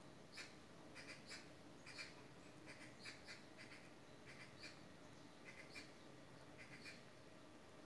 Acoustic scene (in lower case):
park